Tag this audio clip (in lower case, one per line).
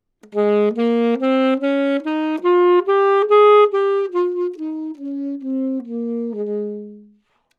music
musical instrument
wind instrument